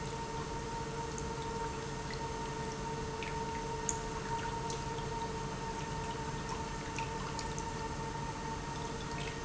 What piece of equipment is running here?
pump